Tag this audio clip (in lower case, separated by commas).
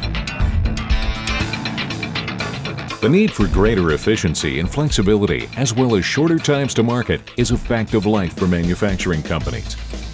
music, speech